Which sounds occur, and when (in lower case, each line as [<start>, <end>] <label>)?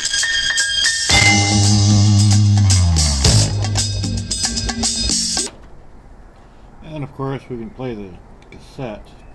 [0.00, 5.52] music
[5.51, 9.34] background noise
[5.59, 5.73] clicking
[6.35, 6.75] breathing
[6.83, 8.21] man speaking
[8.43, 8.52] clicking
[8.52, 9.26] man speaking